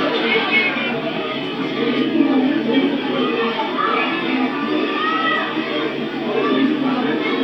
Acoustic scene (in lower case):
park